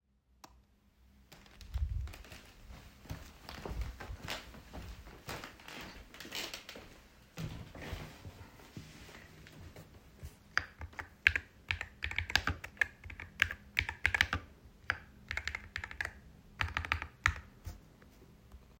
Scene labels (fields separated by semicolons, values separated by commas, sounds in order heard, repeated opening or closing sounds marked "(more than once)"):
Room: office; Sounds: light switch, footsteps, keyboard typing